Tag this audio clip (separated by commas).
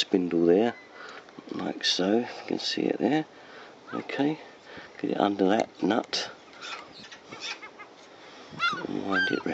outside, rural or natural, Speech